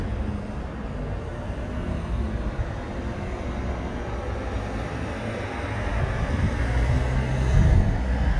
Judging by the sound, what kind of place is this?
street